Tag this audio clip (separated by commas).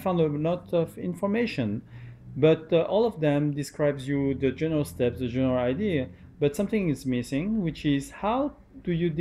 Speech